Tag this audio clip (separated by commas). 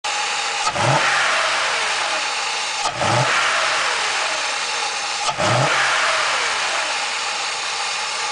Engine, Vehicle, revving